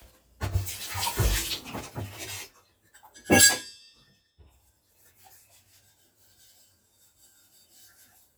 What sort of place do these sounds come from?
kitchen